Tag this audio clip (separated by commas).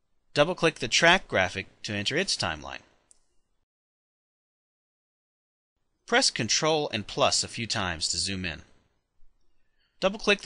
Speech